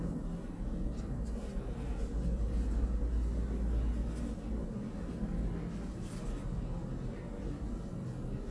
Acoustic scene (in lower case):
elevator